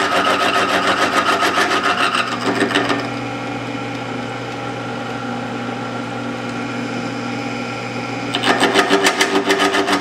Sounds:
Tools

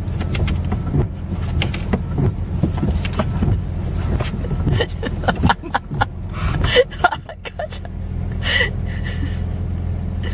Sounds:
Speech

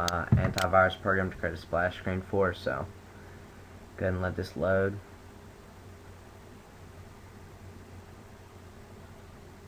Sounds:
Speech

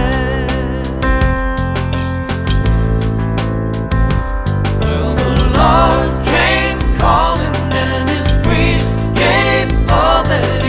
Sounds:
Music

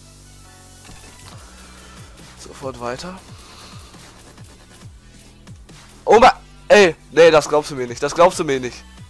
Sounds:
Speech, Music

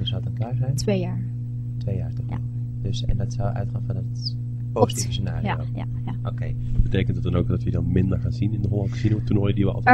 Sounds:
Speech, inside a large room or hall

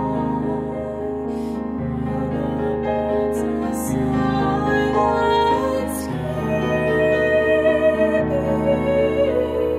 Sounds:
Music

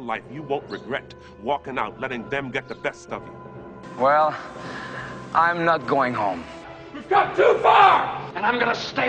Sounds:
Music, Narration, Male speech, Speech

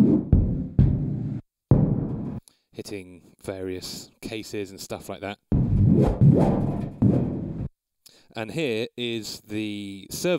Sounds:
Music, Speech

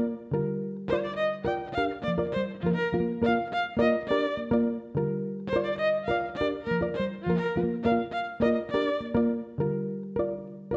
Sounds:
fiddle, Musical instrument, Bowed string instrument, Music

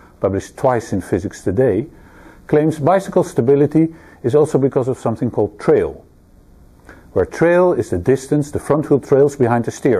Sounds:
Speech

